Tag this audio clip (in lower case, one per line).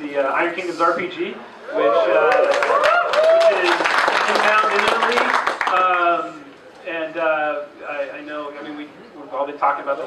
male speech
speech